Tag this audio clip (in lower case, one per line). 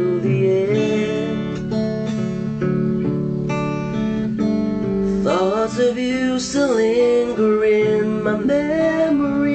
strum
music
plucked string instrument
acoustic guitar
guitar
musical instrument